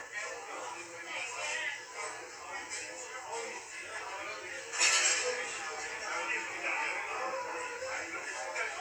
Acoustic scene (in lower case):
restaurant